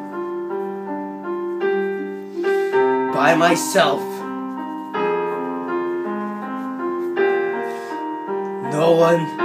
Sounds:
Music, Speech

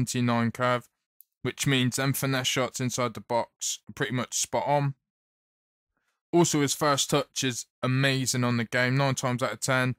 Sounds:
Speech

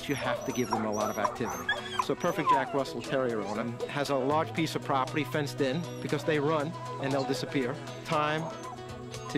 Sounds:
pets, Dog, Animal

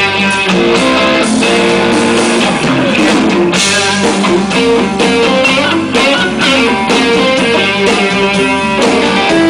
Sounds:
Musical instrument, Music, Guitar, Plucked string instrument, Electric guitar

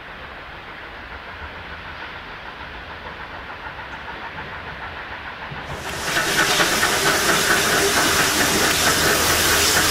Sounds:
Steam, Vehicle, Train, Rail transport

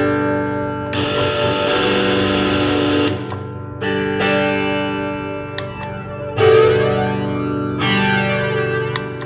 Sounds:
Musical instrument, Effects unit, Guitar, Music

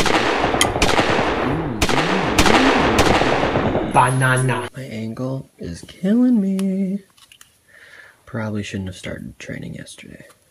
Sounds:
inside a small room, Speech

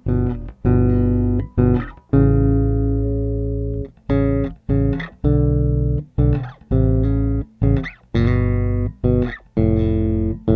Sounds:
Distortion, Bass guitar, Electric guitar, Effects unit, Musical instrument, Guitar, Music, Plucked string instrument

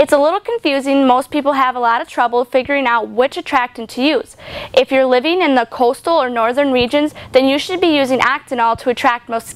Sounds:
Speech

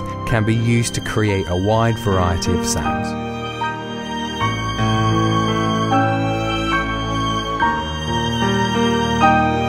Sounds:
Speech, Music, Background music, Musical instrument, Piano, Electric piano, Keyboard (musical)

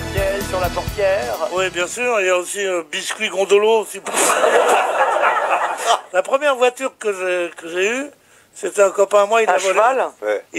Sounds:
Music, Speech

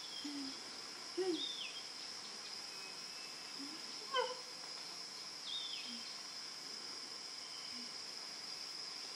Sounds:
chimpanzee pant-hooting

